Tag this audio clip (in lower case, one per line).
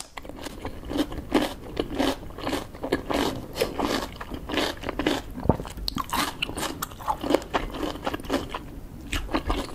people slurping